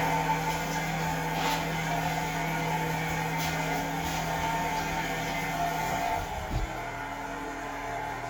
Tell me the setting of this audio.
restroom